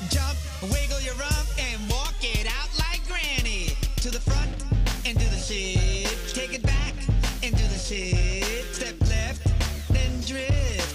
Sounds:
Music

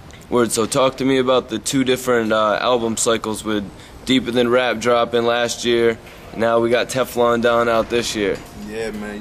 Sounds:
Music, Speech

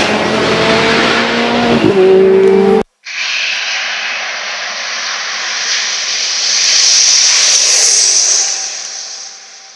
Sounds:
Vehicle

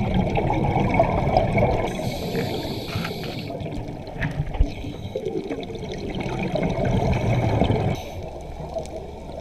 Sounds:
scuba diving

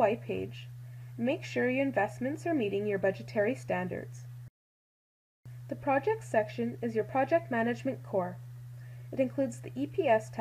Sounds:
Speech

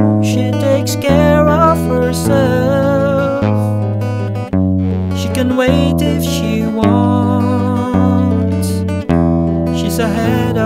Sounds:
Plucked string instrument, Acoustic guitar, Music, Guitar, Musical instrument

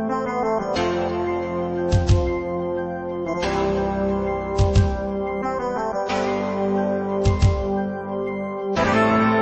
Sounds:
Theme music, Music

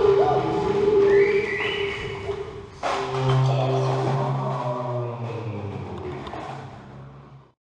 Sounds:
Music, Musical instrument

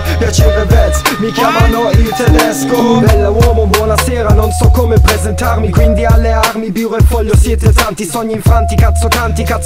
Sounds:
Music

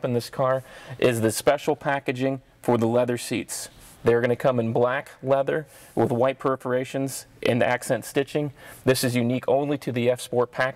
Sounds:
Speech

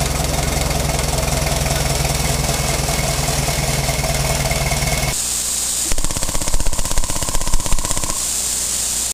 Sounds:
Vehicle, Engine

